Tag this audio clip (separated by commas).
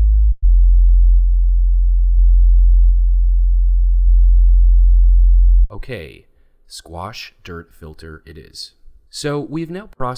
Speech